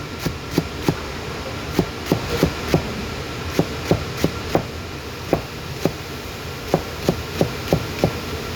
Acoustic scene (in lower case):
kitchen